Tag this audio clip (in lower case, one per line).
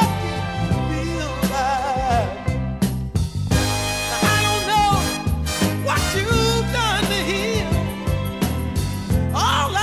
music